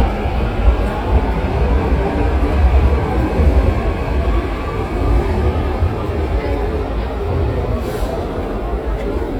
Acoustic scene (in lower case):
subway station